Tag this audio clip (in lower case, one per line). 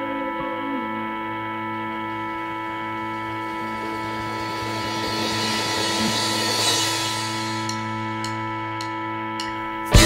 music